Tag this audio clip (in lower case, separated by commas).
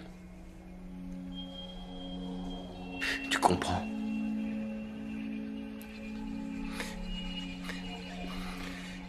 speech, man speaking, music